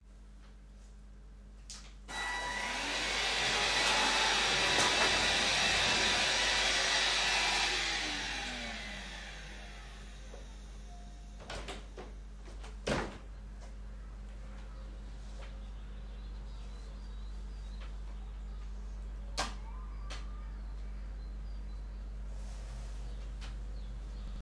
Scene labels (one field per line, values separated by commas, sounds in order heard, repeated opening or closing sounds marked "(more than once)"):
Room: bedroom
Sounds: vacuum cleaner, window